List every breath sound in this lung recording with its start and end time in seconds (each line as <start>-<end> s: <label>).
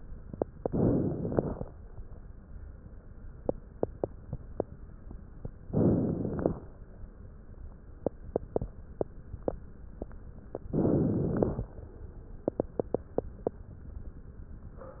0.59-1.69 s: inhalation
5.67-6.78 s: inhalation
10.72-11.71 s: inhalation